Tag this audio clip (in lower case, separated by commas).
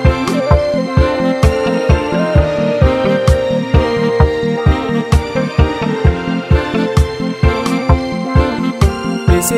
music, soul music